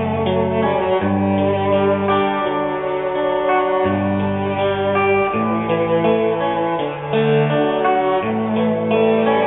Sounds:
Double bass, Blues, Bowed string instrument, Musical instrument, Classical music, Wedding music, Cello, Music, String section

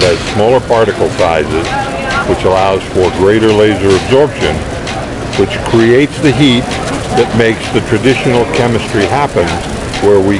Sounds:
Speech

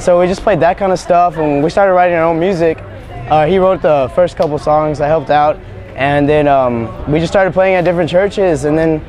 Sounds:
Speech

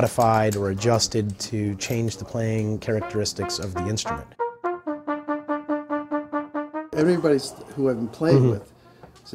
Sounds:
Brass instrument, Trumpet

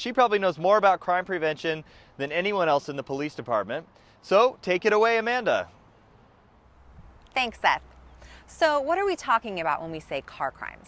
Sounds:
Speech

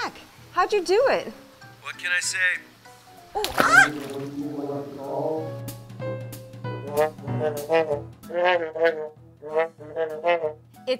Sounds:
Speech, Music

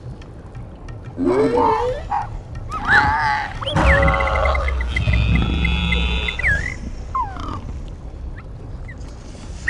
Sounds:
Music

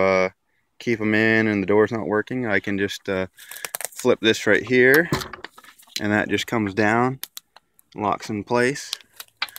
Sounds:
Speech, Door, Sliding door

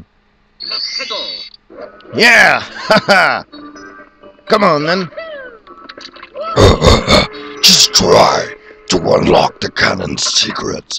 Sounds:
Music, Speech

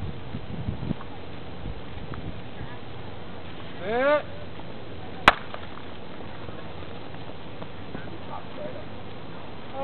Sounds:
Run, Speech, outside, urban or man-made

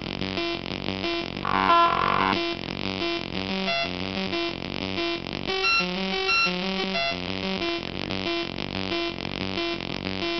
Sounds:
Music, Sampler

